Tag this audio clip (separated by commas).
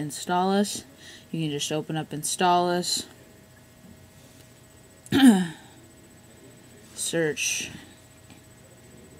Speech